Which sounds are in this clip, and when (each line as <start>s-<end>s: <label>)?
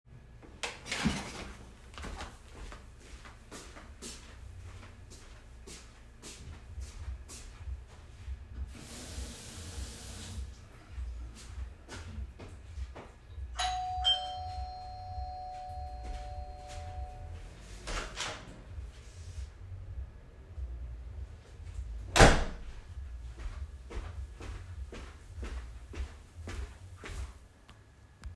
1.9s-8.6s: footsteps
8.6s-10.7s: running water
10.9s-13.5s: footsteps
13.5s-17.4s: bell ringing
15.5s-17.9s: footsteps
17.8s-18.6s: door
22.1s-22.8s: door
23.2s-28.3s: footsteps